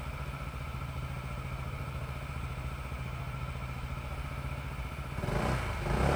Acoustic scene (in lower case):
residential area